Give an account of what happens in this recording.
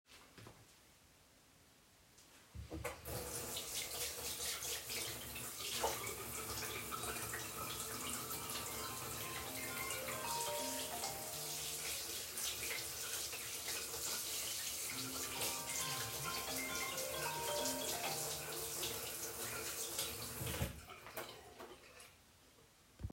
I switched on the water in the bathroom. Suddenly, the phone started to ring two times. I did not answer it and switched off the water in the end.